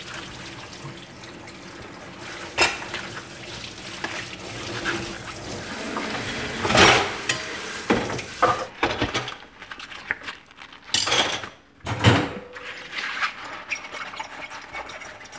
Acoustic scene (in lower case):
kitchen